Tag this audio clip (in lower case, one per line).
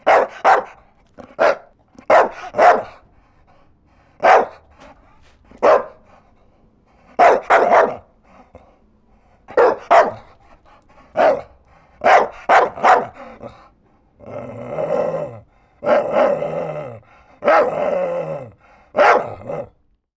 pets
animal
dog
bark